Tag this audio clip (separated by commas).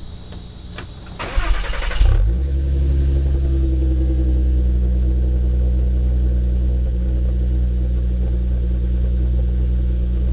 Car, Vehicle